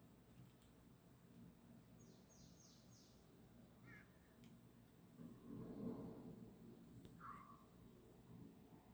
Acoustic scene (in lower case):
park